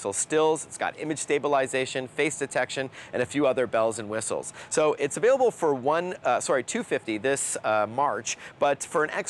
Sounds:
speech

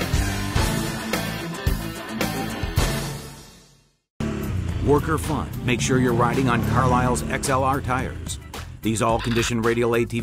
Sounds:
music
speech

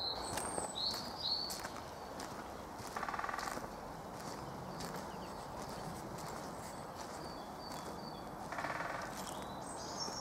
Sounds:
woodpecker pecking tree

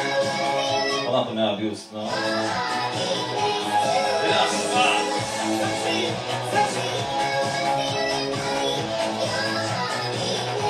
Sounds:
speech
music

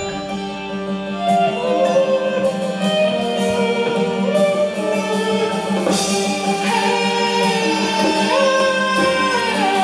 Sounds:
singing
music
musical instrument
guitar
electric guitar

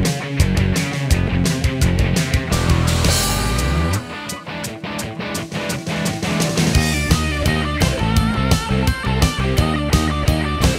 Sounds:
theme music
rhythm and blues
music

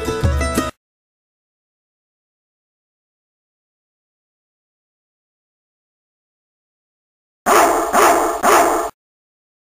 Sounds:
bow-wow
domestic animals
animal
yip
dog
music

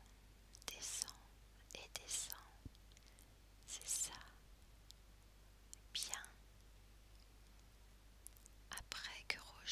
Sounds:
whispering
speech

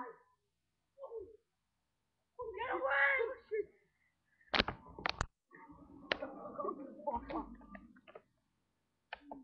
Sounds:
crackle
speech

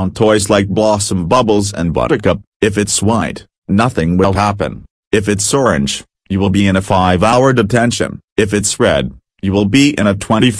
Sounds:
speech

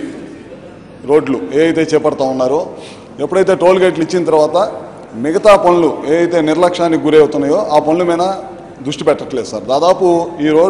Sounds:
monologue
speech
male speech

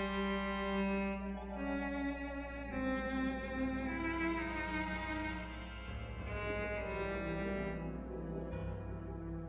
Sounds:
music
bowed string instrument
cello

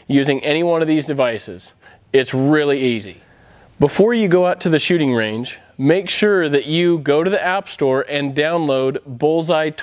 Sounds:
speech

